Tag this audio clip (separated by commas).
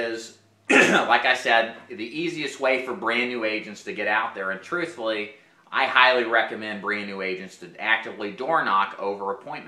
Speech